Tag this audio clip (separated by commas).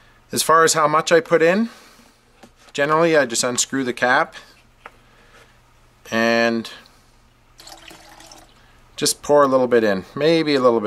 inside a small room, Speech